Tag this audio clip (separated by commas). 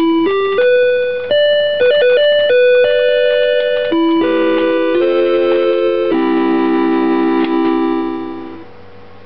Speech, Music